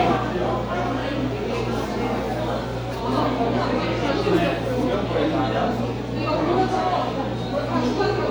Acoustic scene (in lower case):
crowded indoor space